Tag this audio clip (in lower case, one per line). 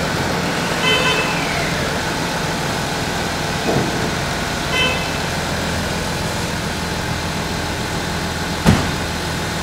car
vehicle